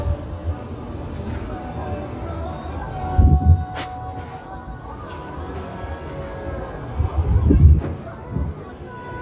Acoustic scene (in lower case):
street